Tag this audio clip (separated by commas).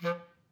Wind instrument, Music, Musical instrument